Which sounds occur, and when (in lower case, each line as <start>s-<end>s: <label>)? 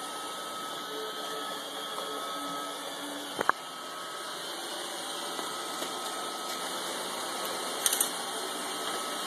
0.0s-9.2s: music
0.0s-9.2s: vacuum cleaner
0.9s-3.2s: singing
3.4s-3.6s: generic impact sounds
3.8s-5.4s: singing
5.3s-5.5s: generic impact sounds
5.8s-6.0s: generic impact sounds
7.8s-8.1s: generic impact sounds
8.3s-9.2s: singing